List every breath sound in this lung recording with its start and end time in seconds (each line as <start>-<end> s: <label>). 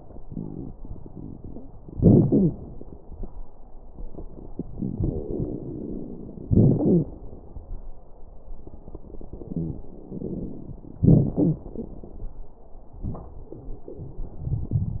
0.23-1.73 s: inhalation
0.23-1.73 s: crackles
1.90-2.55 s: exhalation
2.25-2.53 s: wheeze
5.00-6.50 s: inhalation
5.00-6.50 s: crackles
6.48-7.11 s: exhalation
6.48-7.11 s: wheeze
9.57-9.82 s: wheeze
10.05-10.99 s: inhalation
10.05-10.99 s: crackles
11.01-11.71 s: exhalation
11.36-11.67 s: wheeze